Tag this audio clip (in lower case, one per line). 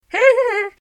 laughter
human voice